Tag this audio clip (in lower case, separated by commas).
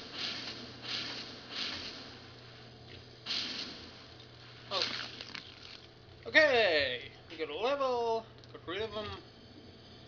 speech